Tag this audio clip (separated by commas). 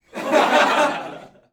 Chuckle, Human voice, Laughter